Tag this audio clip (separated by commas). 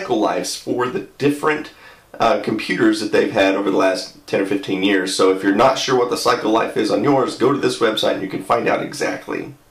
Speech